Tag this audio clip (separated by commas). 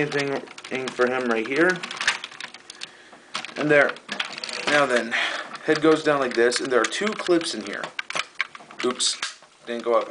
Speech